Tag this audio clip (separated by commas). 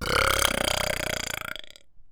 Burping